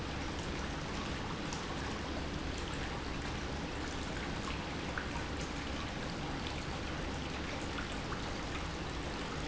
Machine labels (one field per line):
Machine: pump